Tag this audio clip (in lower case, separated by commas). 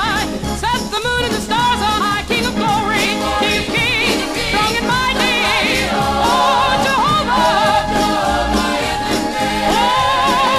music, singing, gospel music